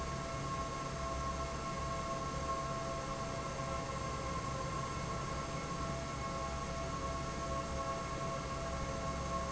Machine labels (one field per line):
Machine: fan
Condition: normal